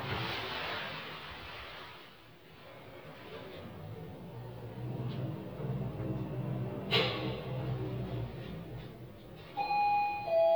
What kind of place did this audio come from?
elevator